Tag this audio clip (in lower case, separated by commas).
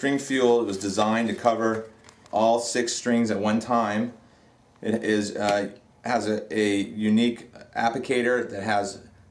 speech